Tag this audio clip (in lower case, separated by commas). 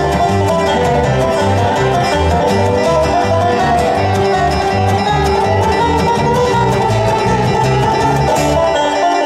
musical instrument, guitar, violin, music, banjo